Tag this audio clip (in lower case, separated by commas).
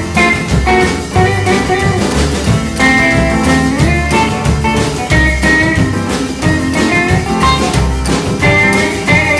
plucked string instrument, music, jazz, country